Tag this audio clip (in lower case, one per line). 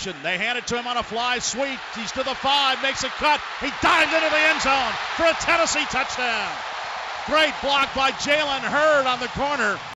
speech